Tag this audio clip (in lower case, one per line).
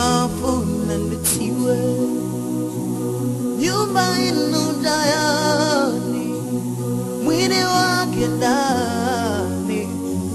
music
new-age music
gospel music